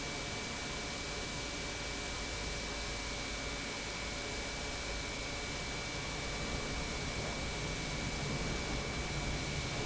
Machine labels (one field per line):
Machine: pump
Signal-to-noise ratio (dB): -6 dB